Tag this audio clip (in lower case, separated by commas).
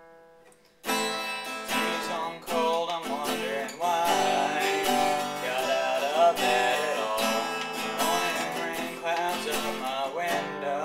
music, acoustic guitar, plucked string instrument, musical instrument, guitar